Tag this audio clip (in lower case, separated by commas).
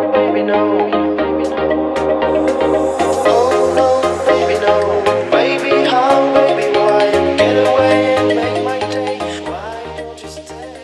music